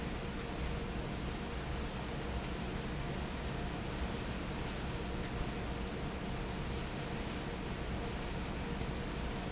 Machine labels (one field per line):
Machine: fan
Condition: normal